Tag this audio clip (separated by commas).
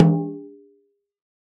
Percussion, Drum, Snare drum, Musical instrument, Music